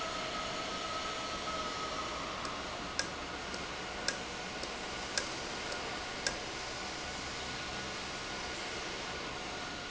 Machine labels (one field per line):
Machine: valve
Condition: normal